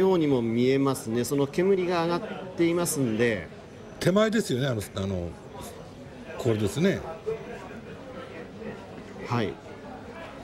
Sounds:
Speech

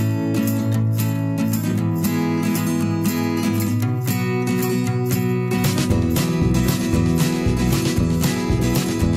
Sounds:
Music

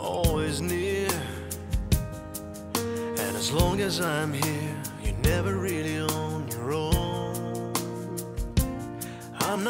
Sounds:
Music

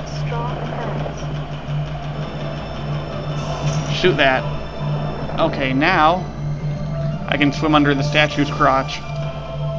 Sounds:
Music, Speech

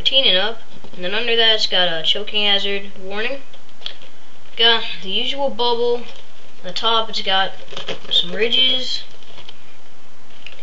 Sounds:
Speech

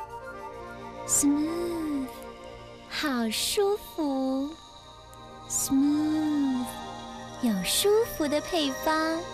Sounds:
Speech, Music

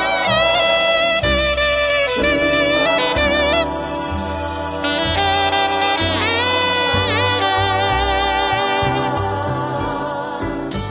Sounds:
playing saxophone

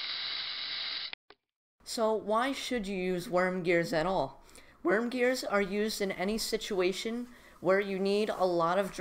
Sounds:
Ratchet, Gears, Mechanisms

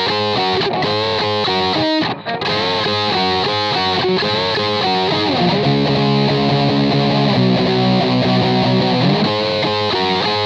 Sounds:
Strum, Electric guitar, Music, Plucked string instrument, Musical instrument

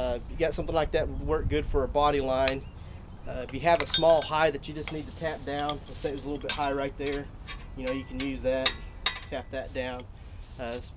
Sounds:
Speech

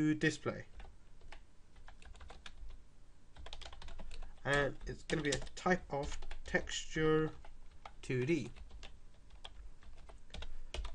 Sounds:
Typing, Speech, Computer keyboard

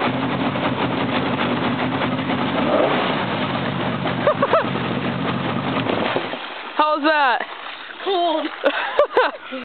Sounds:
Speech

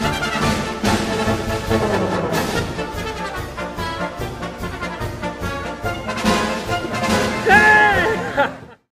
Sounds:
Music

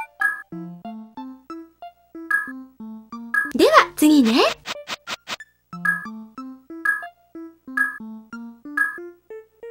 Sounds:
Speech, Music

